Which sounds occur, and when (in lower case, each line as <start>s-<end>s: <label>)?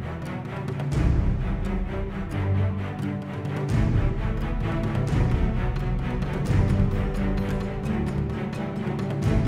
0.0s-9.4s: music